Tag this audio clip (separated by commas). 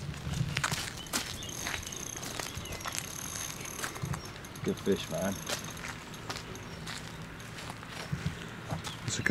Animal, Speech